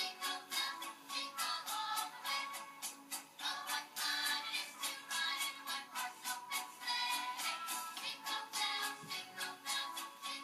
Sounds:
jingle (music)
music

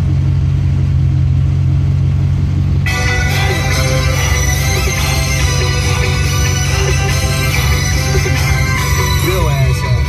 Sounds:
speech
music

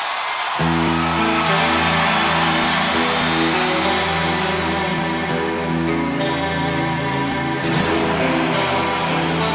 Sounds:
music
plucked string instrument
guitar
musical instrument

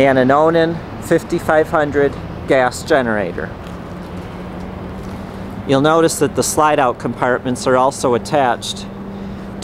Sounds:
speech

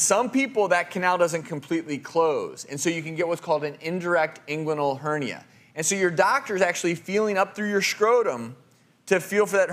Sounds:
speech

